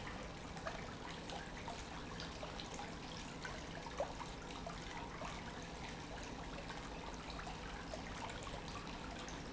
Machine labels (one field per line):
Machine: pump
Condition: normal